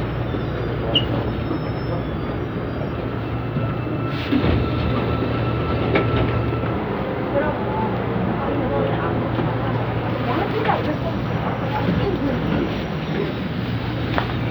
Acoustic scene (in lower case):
subway train